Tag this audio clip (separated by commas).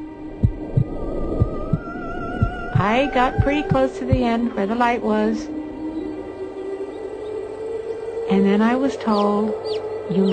Speech, Music, Bird